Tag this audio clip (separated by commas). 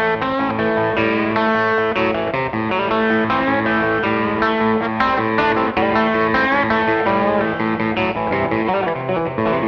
Musical instrument, Guitar, Plucked string instrument, Music